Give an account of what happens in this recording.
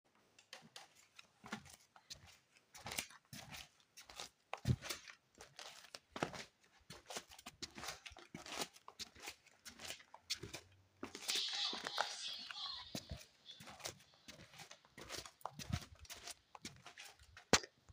I walked back and forth across the living room floor several times, then opened and closed the door, creating footsteps sounds on the floor.